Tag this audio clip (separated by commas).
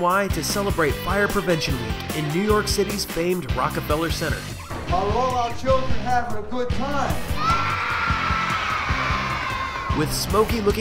Speech, Music